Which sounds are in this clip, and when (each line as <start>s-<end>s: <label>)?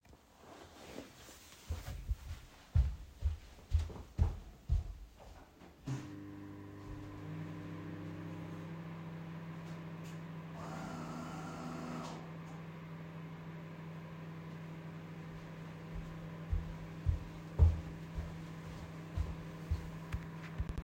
1.7s-5.6s: footsteps
5.7s-20.8s: microwave
9.8s-12.4s: coffee machine
15.9s-20.1s: footsteps
20.1s-20.7s: keyboard typing